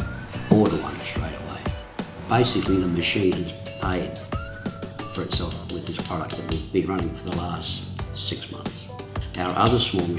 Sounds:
Music, Speech

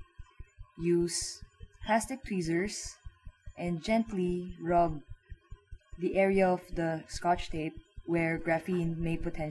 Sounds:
inside a small room, Speech

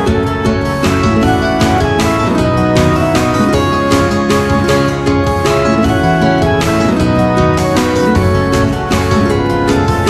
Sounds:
Music

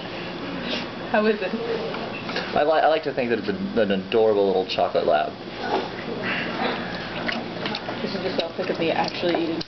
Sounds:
Speech

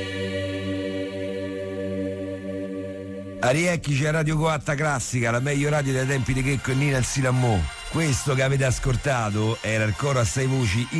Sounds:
Music, Speech

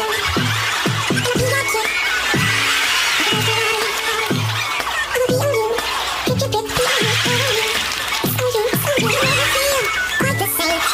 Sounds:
Music

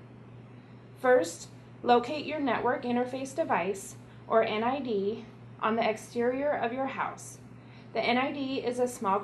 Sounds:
Speech

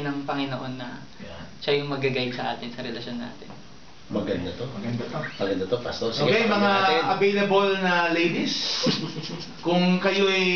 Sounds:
Speech

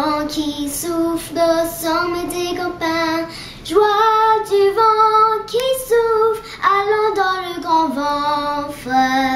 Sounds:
Child singing, Female singing

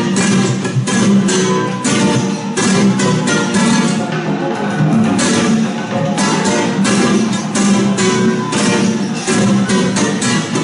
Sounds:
Music, Guitar, Musical instrument

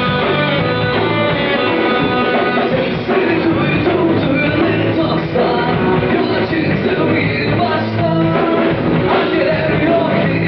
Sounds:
Punk rock, Rock and roll, Music

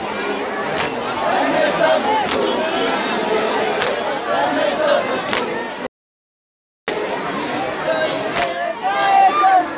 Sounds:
Speech

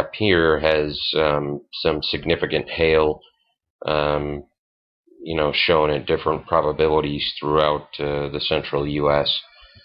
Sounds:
Speech

